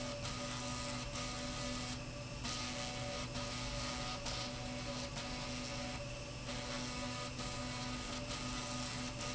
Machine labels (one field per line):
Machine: slide rail